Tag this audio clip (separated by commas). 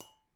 Glass